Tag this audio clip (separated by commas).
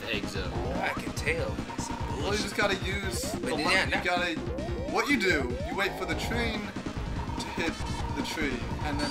Speech, Techno, Music